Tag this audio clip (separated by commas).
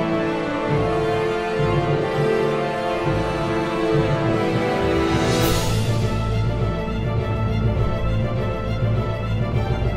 Soundtrack music, Music